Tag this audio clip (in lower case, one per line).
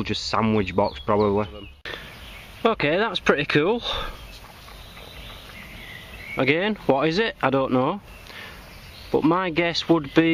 speech
outside, rural or natural